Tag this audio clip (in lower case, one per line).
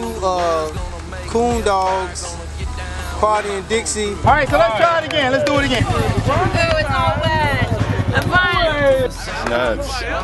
speech
music